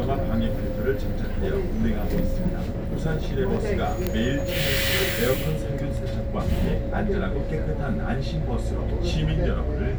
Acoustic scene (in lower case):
bus